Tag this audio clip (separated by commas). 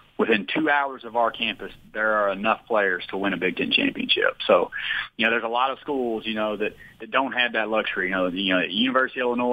Speech